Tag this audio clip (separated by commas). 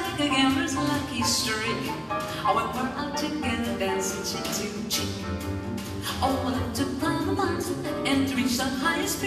Music, Female singing